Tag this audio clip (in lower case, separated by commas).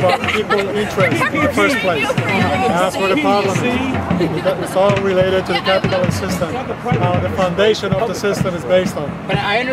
music, speech, car